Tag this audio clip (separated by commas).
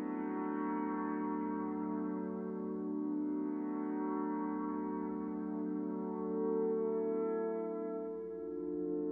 Music